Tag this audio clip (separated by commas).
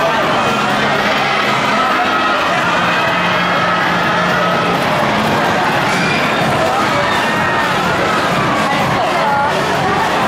Music, Speech